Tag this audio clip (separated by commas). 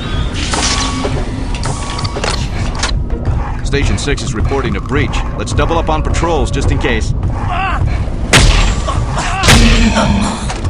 Speech